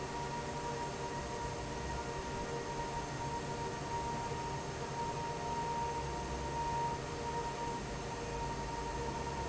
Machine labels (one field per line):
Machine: fan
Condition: normal